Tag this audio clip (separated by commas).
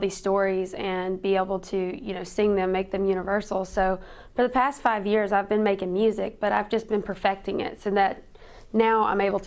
Speech